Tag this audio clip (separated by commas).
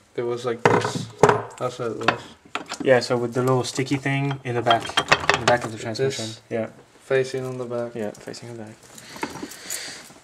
Speech